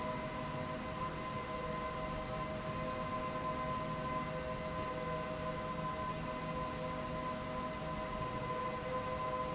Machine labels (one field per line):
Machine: slide rail